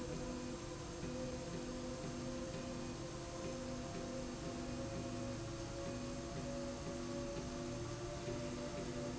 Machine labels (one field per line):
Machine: slide rail